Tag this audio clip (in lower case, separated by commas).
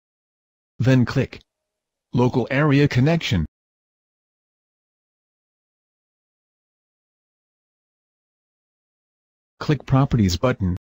speech synthesizer